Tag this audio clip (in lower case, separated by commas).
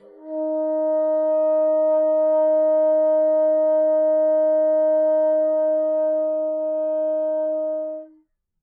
musical instrument, music, wind instrument